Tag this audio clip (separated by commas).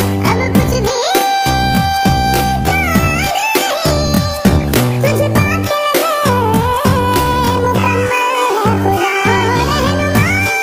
Music